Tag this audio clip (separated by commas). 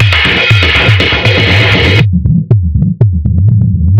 Percussion, Drum kit, Musical instrument, Music